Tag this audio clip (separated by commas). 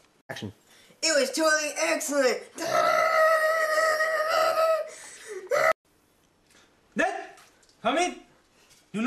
inside a small room, Speech